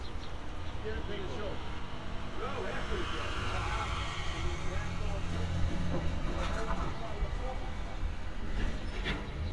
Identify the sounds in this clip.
person or small group talking